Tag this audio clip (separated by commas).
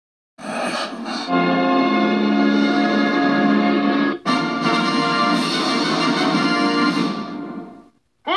Music, Television